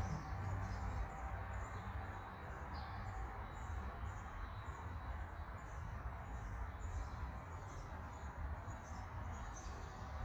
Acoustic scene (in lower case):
park